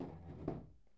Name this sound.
wooden furniture moving